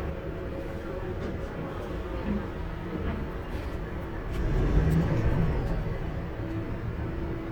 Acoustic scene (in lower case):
bus